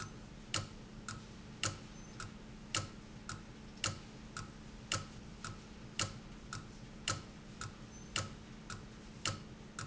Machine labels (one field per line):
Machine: valve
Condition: abnormal